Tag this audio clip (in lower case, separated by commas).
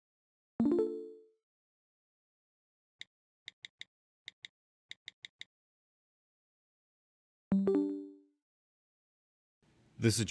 music, speech